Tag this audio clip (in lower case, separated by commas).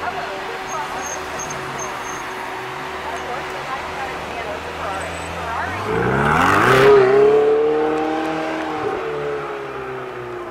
skidding